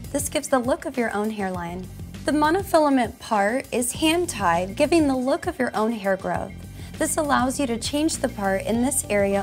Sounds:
Music, Speech

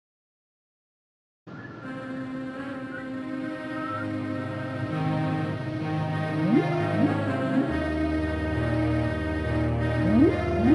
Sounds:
Music

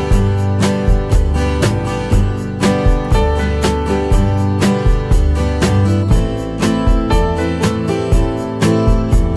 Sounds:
Music

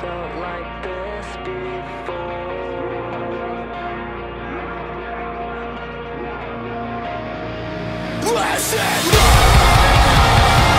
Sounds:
Music

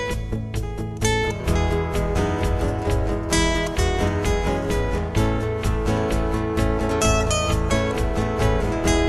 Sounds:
Musical instrument, Strum, Electric guitar, Guitar, Plucked string instrument, Music

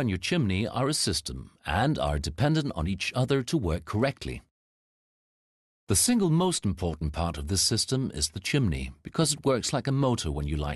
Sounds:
Speech

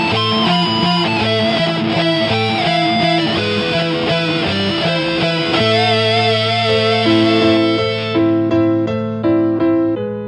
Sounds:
Electric guitar, Guitar, Musical instrument, Music, Plucked string instrument, Strum, playing electric guitar

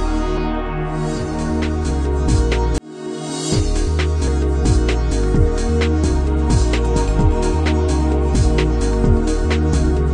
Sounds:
Music

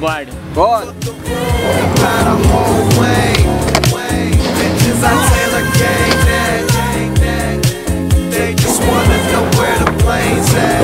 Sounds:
Music, Funk, Skateboard, Speech

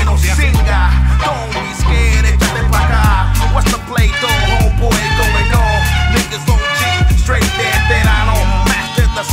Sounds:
Music

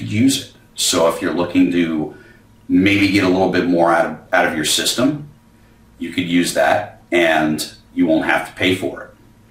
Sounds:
Speech

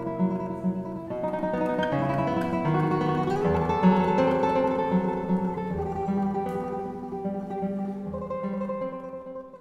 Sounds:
Musical instrument, Music, Strum, Acoustic guitar, Guitar, Plucked string instrument

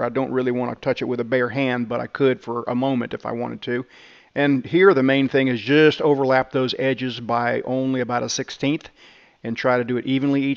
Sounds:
arc welding

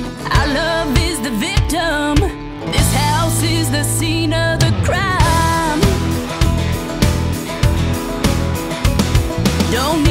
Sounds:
Music

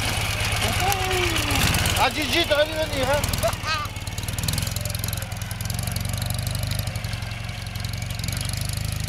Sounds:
Motor vehicle (road), Speech

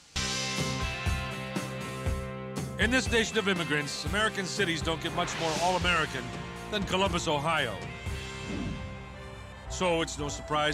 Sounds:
Speech, Music

